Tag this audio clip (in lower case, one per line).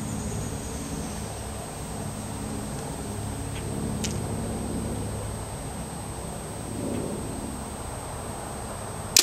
arrow
outside, rural or natural